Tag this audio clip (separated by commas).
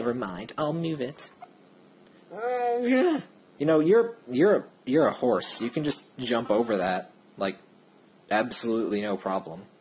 Speech